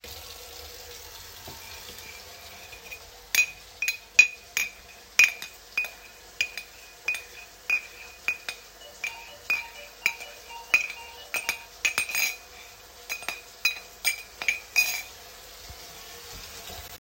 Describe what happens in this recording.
The water was running in the sink, while I was stirring the tea in a mug. At the same time the door bell started ringing.